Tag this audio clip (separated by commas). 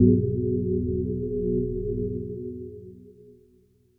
Music, Organ, Keyboard (musical), Musical instrument